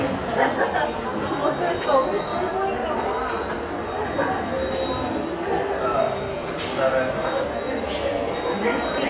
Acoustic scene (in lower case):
subway station